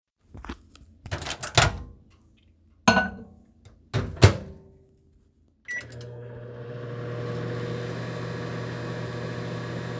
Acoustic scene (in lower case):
kitchen